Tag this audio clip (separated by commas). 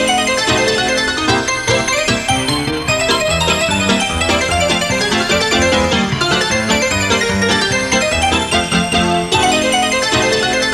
Music